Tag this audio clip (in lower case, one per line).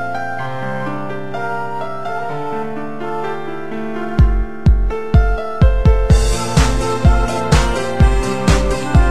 music